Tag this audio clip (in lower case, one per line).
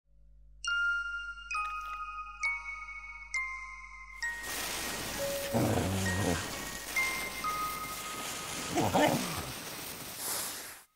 glockenspiel
music